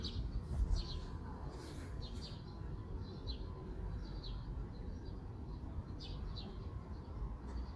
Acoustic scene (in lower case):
park